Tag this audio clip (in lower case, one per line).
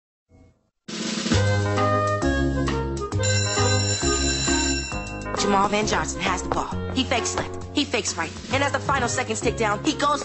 speech
music